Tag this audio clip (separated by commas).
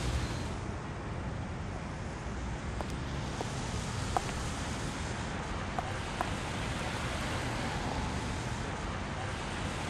Pink noise